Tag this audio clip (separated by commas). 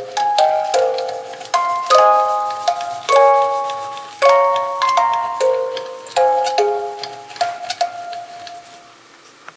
Music